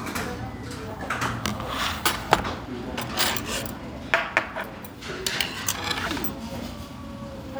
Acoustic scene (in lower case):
crowded indoor space